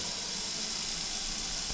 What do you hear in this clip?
water tap